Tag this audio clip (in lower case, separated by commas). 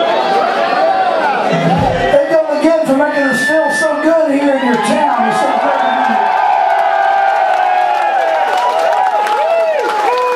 speech